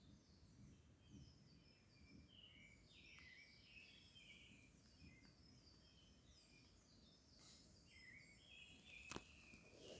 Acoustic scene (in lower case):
park